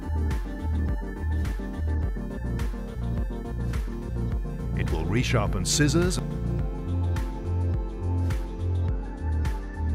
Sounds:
electric grinder grinding

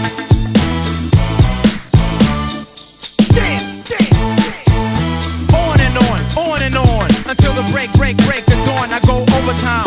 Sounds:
music

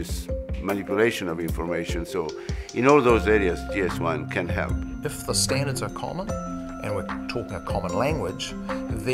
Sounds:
doorbell

